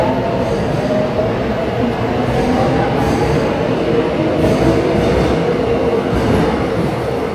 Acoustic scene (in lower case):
subway station